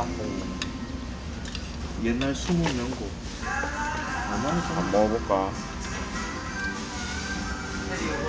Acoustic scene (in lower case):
restaurant